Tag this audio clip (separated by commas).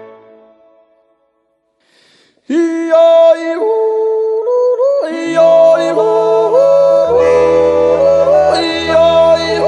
yodelling